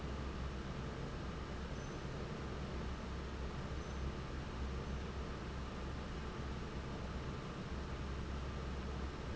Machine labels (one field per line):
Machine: fan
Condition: normal